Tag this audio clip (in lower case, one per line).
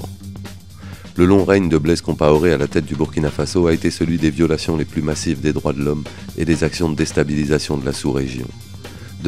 music
speech